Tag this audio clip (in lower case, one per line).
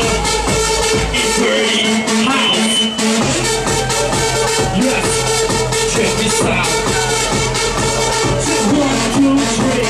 speech
music